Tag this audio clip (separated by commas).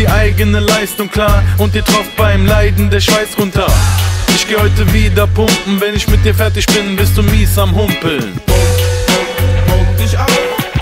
Music